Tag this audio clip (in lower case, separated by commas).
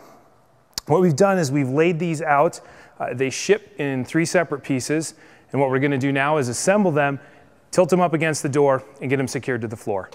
speech